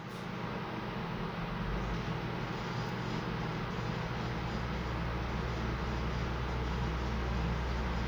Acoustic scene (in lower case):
elevator